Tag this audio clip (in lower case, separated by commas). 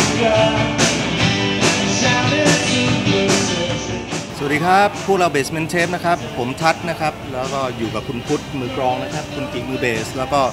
music, speech